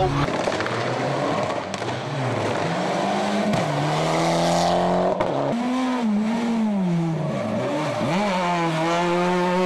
Tires squeal and engines rev as cars speed by